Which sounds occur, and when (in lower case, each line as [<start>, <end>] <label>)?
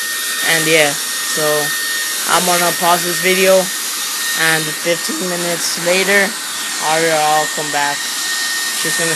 [0.00, 9.15] hair dryer
[0.36, 0.91] woman speaking
[1.32, 1.69] woman speaking
[2.26, 3.65] woman speaking
[4.34, 6.30] woman speaking
[6.79, 7.95] woman speaking